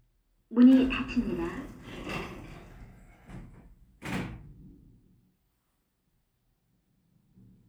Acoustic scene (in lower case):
elevator